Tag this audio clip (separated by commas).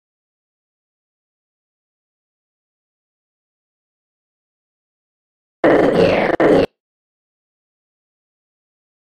Silence